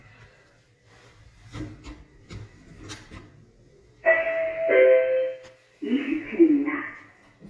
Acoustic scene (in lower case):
elevator